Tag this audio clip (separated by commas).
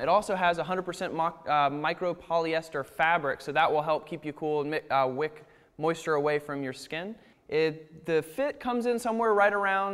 Speech